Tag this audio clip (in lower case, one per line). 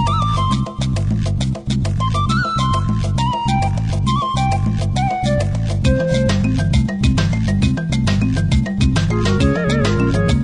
happy music
music